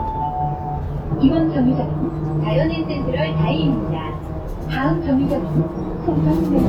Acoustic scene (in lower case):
bus